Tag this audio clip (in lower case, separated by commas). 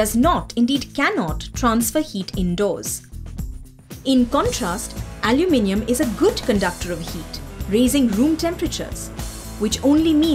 speech, music